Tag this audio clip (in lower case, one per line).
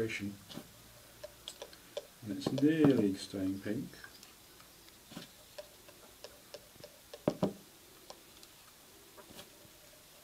speech